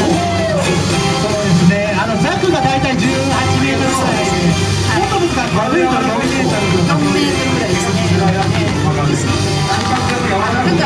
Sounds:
speech, music

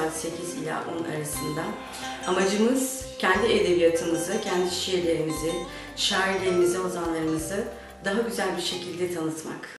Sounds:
speech, music

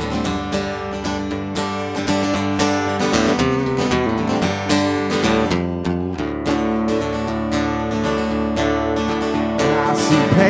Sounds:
blues, music

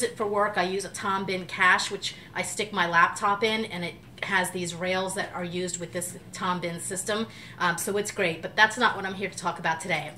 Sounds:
speech

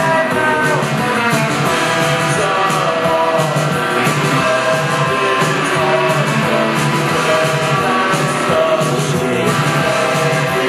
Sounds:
guitar, musical instrument, plucked string instrument, music

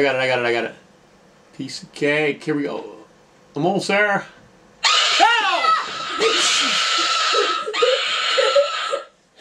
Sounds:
inside a small room, speech

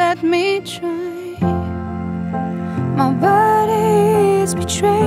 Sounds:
music

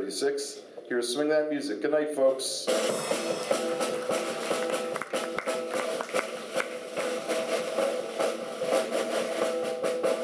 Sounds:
speech, music, swing music

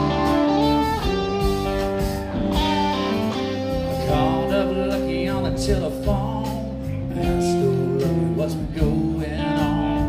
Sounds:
music

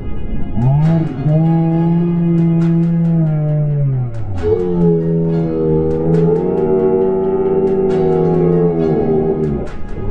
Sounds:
music

